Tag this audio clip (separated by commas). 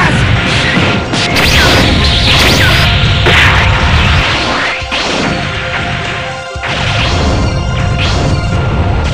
Music